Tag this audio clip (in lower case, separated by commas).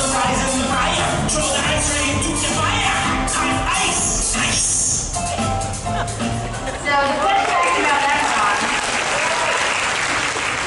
applause, singing